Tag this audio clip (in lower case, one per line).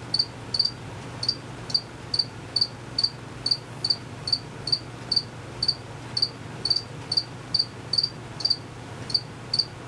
cricket chirping